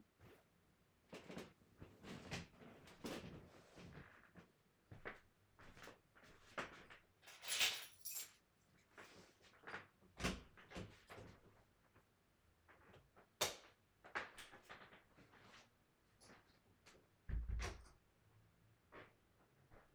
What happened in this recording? I got out of bed and walked over to get my keys on top of the drawers. Then I opened the bedroom door, turned off the lights, closed the door and went out.